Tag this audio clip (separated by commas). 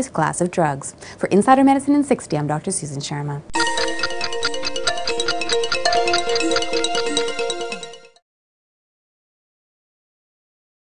Music, Speech